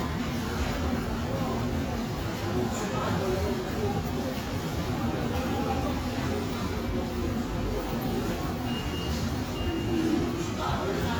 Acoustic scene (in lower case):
subway station